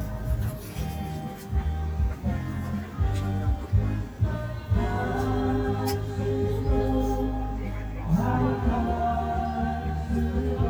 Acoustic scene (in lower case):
park